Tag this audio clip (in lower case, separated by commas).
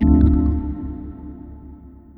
musical instrument, keyboard (musical), music, organ